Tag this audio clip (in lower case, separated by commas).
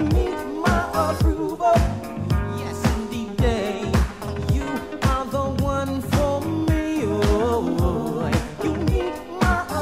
music